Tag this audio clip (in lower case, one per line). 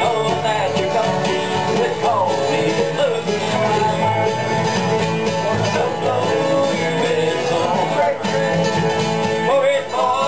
music
traditional music